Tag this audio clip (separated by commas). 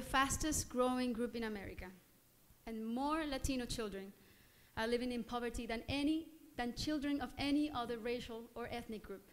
Female speech, Speech, monologue